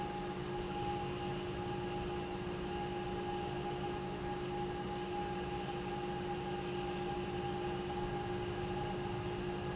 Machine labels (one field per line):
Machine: pump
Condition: normal